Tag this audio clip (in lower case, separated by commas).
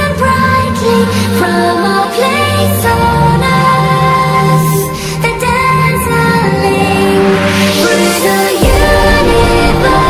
electronic music, music